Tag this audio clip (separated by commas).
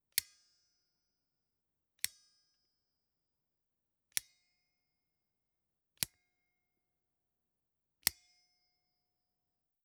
Scissors, home sounds